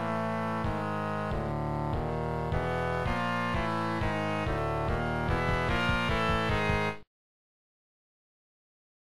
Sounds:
Video game music, Music

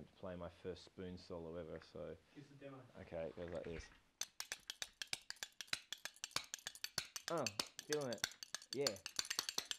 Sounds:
Speech

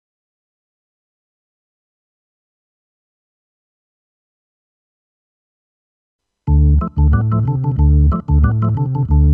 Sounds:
Music, Keyboard (musical), Synthesizer

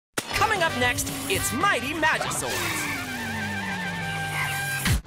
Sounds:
Music, Speech

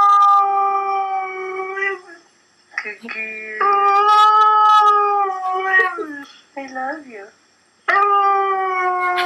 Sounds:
Domestic animals, Animal, Dog, Speech

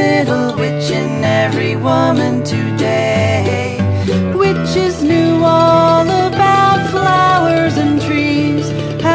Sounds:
Music

